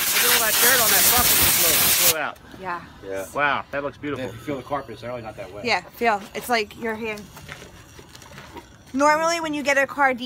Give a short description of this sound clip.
People speaking over water spraying